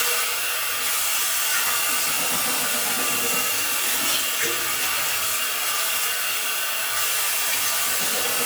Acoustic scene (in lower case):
restroom